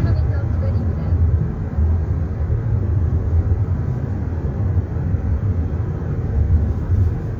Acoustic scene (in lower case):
car